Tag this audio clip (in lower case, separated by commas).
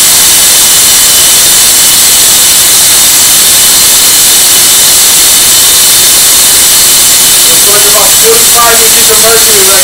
inside a large room or hall, speech